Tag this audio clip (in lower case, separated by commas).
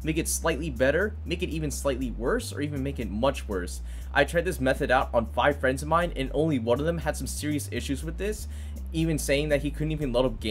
speech, music